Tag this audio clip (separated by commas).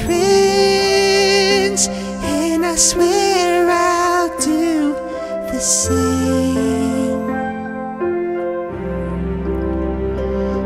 male singing